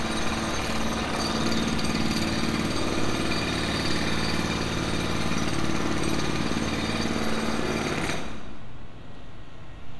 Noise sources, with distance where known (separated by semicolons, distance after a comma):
jackhammer, near